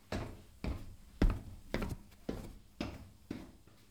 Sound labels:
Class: footsteps